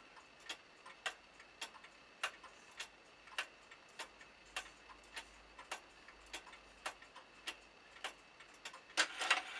A clock does ticktock